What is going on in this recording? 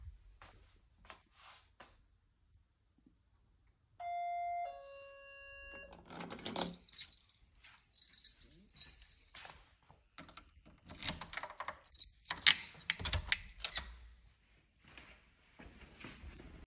The doorbell rang. I picked up my keys and walked to the door. I inserted the key into the lock, turned it and opend the door.